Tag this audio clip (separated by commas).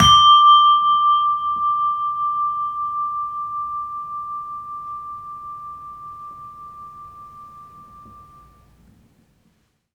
Bell